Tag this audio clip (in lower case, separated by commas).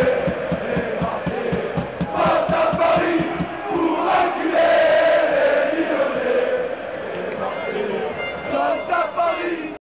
speech